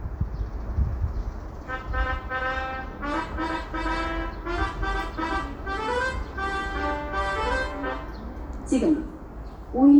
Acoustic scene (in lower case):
subway station